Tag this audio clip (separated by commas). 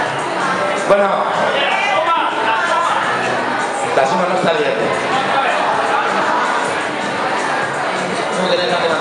Speech